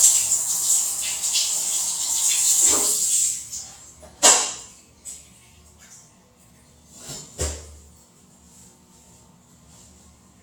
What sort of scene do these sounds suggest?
restroom